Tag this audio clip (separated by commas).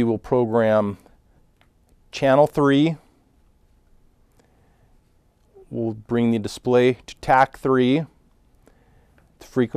Speech